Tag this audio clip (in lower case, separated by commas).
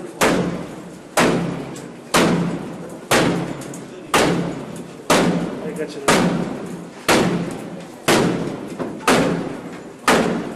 speech